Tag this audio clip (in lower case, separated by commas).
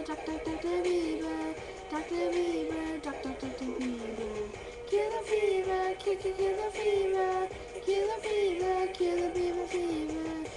music, female singing